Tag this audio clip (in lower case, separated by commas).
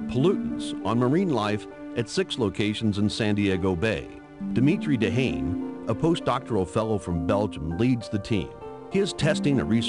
speech, music